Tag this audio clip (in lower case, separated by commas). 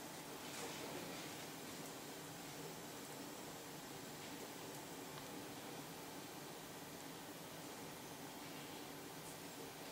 silence, inside a small room